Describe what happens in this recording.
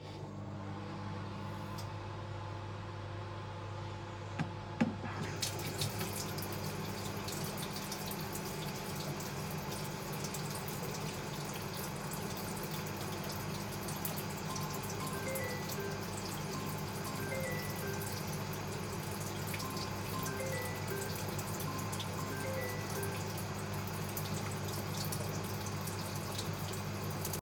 While I was preparing some food in the microwave, I poured some water from the nearby water tap. I waited a little until the water had the right temperature. Suddenly my phone rang.